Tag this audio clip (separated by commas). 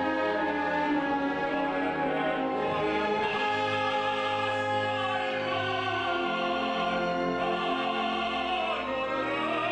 Classical music, Music, Opera, Orchestra, Singing, Bowed string instrument